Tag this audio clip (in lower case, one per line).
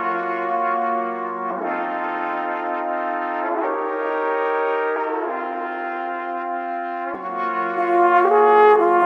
playing trombone